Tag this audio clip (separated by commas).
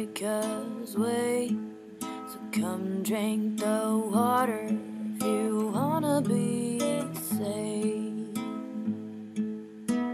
Music